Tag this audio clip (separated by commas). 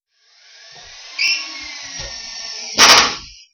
Power tool, Tools, Drill